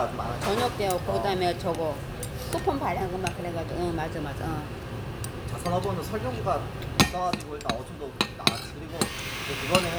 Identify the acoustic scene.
restaurant